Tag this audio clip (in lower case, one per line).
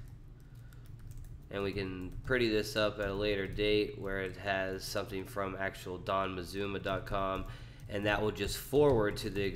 speech